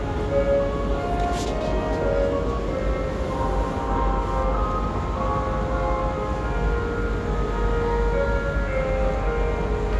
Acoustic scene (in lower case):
subway station